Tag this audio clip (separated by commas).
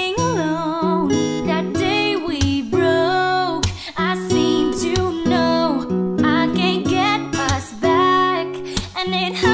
Music